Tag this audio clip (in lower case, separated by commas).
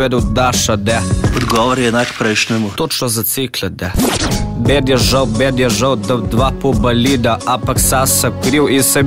speech, music